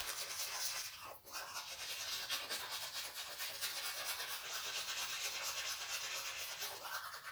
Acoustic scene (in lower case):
restroom